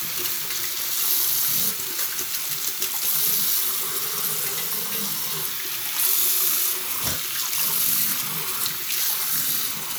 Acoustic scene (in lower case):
restroom